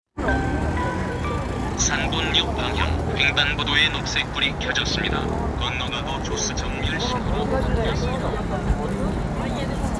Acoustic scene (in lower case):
street